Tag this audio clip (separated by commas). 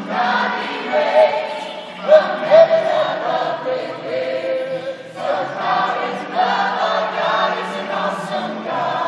Choir, Music